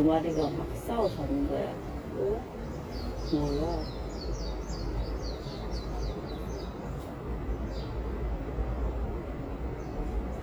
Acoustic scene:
park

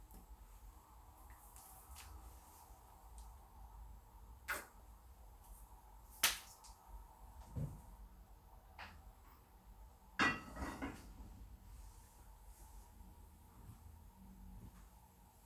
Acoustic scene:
kitchen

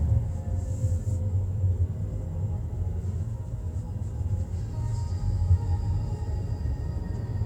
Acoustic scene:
car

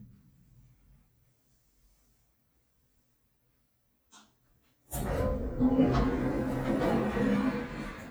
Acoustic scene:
elevator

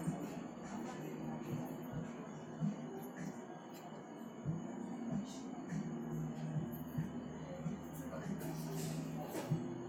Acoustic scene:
cafe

